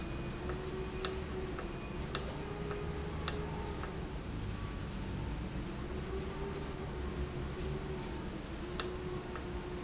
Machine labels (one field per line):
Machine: valve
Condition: normal